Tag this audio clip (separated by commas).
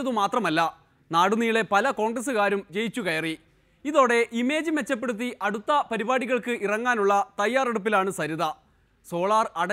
man speaking, Speech